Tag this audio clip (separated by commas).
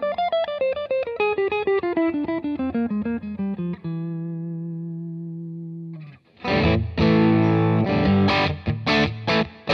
Plucked string instrument, Musical instrument, Electric guitar, Guitar, Effects unit, Music, Distortion